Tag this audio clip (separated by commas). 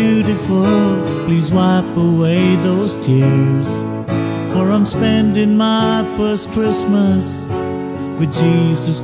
Tender music, Music, Christmas music